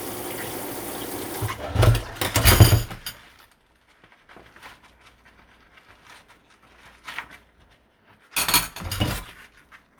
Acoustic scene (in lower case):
kitchen